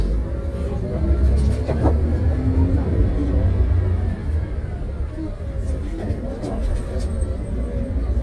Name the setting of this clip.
bus